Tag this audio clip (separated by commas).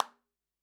Hands, Clapping